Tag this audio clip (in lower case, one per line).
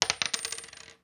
domestic sounds
coin (dropping)